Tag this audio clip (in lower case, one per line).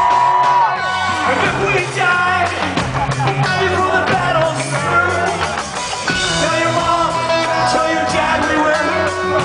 ska
rock and roll
music